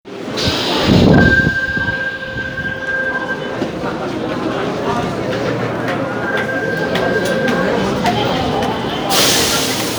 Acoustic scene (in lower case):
subway station